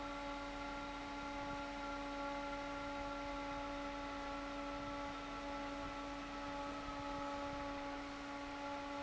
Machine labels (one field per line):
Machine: fan